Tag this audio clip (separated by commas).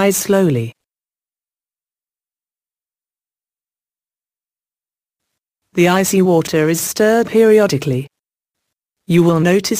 Speech